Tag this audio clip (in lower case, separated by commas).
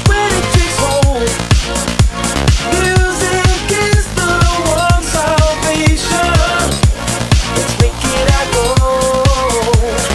soundtrack music, music, rhythm and blues